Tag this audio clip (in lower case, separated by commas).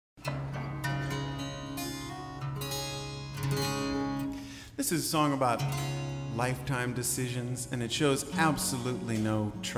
music, speech